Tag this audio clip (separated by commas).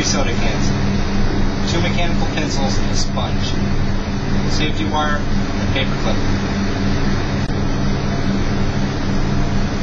Medium engine (mid frequency), Engine, Speech